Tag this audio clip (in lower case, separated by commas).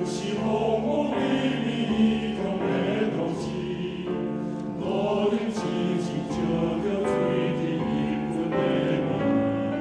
music